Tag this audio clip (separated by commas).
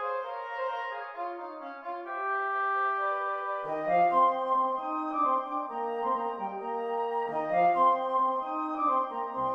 Music, woodwind instrument